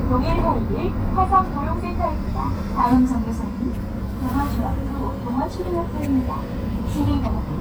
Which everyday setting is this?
bus